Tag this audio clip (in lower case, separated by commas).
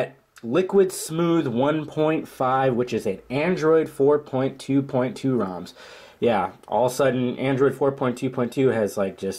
speech